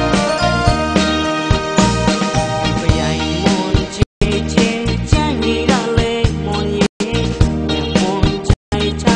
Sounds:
music

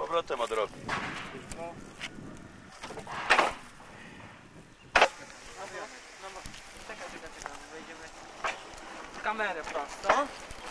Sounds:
train
vehicle
rail transport
speech

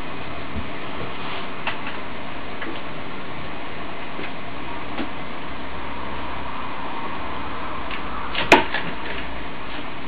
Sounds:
vehicle

